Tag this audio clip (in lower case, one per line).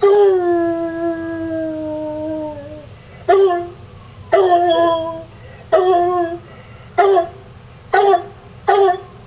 dog baying